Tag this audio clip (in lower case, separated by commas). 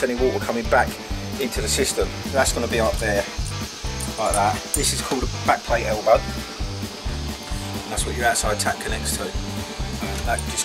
music, speech